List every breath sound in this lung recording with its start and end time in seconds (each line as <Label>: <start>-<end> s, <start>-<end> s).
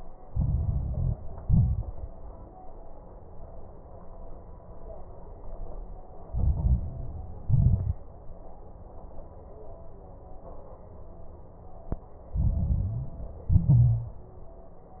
Inhalation: 0.23-1.16 s, 6.29-7.41 s, 12.33-13.49 s
Exhalation: 1.39-2.11 s, 7.47-8.02 s, 13.51-14.23 s
Crackles: 0.23-1.16 s, 1.39-2.11 s, 6.29-7.41 s, 7.47-8.02 s, 12.33-13.49 s, 13.51-14.23 s